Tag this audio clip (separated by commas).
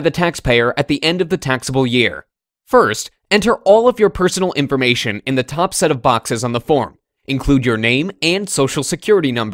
Speech